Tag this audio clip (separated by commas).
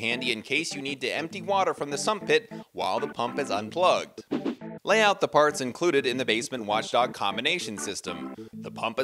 Music, Speech